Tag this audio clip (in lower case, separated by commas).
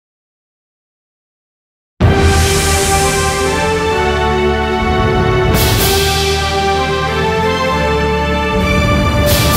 music, theme music